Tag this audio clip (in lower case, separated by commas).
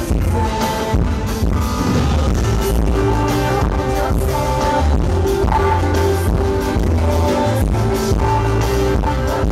music